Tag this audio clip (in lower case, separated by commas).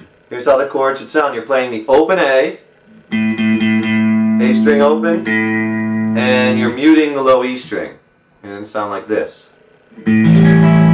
music, musical instrument, plucked string instrument, guitar, speech, acoustic guitar